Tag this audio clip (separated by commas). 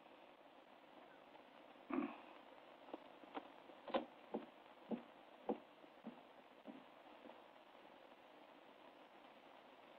Silence, inside a small room